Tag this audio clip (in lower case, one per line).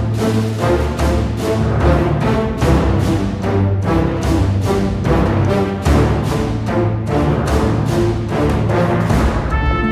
music